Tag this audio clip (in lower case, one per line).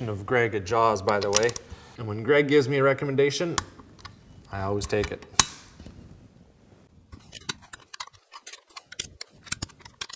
inside a small room
speech